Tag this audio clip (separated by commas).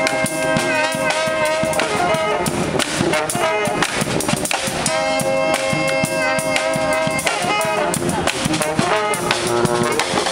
Music, Independent music